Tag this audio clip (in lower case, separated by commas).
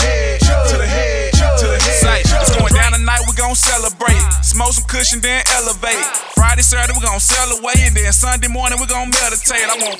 dance music, music